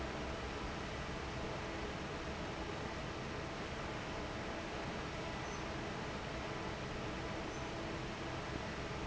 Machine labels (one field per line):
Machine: fan